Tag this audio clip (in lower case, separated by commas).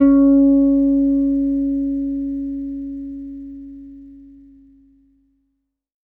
bass guitar, musical instrument, plucked string instrument, guitar, music